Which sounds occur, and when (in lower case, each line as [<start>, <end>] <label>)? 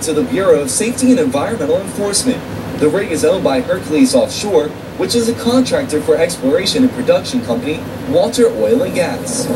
[0.01, 2.44] man speaking
[0.03, 9.55] background noise
[2.71, 4.67] man speaking
[4.89, 7.83] man speaking
[8.09, 9.51] man speaking